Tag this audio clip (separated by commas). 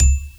Musical instrument, Marimba, Wood, Music, Percussion, Mallet percussion